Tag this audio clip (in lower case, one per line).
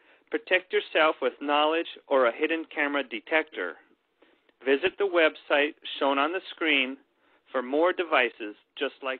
speech